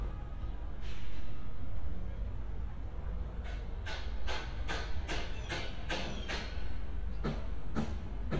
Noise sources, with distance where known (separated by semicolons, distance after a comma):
unidentified impact machinery, near